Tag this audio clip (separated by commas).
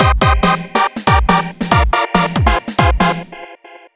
Music, Musical instrument, Percussion, Drum kit